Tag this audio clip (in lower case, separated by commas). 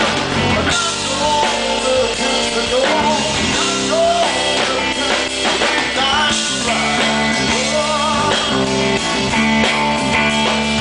funk, music